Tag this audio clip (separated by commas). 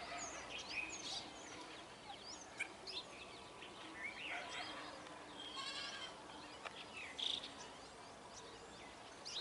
mynah bird singing